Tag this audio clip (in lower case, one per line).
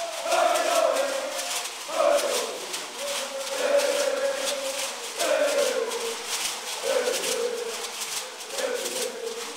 speech
music